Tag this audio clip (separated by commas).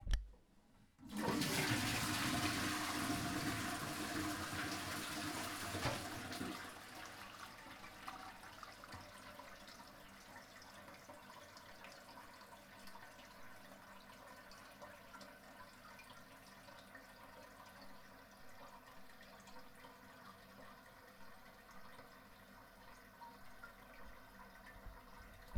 Toilet flush, Liquid, home sounds, Fill (with liquid)